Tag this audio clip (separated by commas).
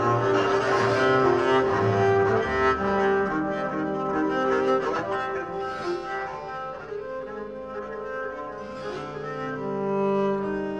Bowed string instrument, Double bass, Cello